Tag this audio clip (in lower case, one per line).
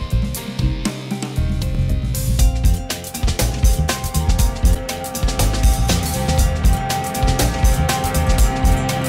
music